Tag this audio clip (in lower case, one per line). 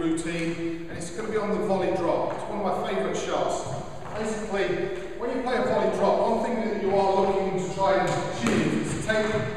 playing squash